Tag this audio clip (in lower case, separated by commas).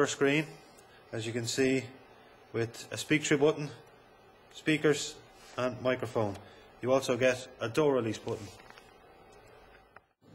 speech